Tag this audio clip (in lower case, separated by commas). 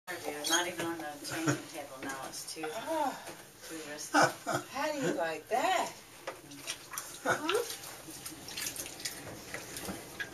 speech